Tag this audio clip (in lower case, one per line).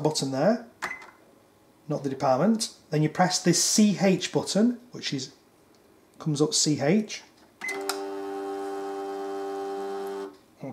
speech